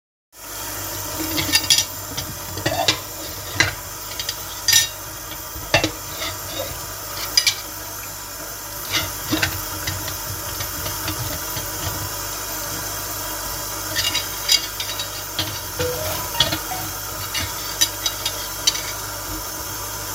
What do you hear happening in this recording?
As the scene starts the water was already running, i then started doing the dishes and eventully got a phone notification during it